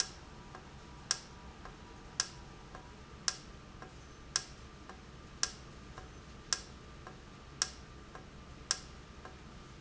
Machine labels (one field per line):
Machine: valve